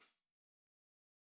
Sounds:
music, musical instrument, tambourine, percussion

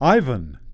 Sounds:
speech, male speech, human voice

